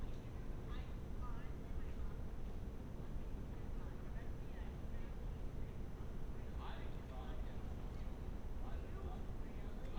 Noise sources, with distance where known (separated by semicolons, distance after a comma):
person or small group talking, far